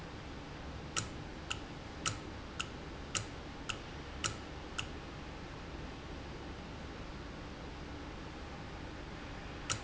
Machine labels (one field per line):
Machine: valve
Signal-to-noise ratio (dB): 0 dB